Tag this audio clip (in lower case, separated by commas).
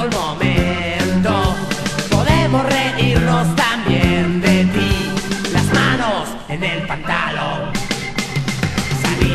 music